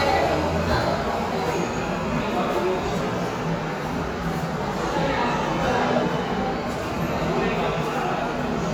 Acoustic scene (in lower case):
subway station